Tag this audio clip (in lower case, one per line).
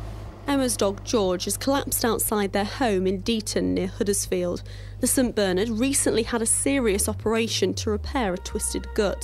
speech